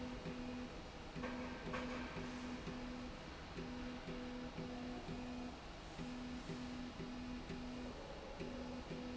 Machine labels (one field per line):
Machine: slide rail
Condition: normal